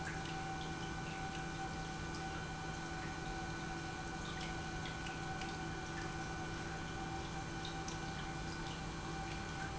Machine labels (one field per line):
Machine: pump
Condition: normal